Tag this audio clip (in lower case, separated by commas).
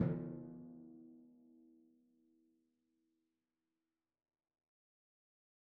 music, musical instrument, percussion, drum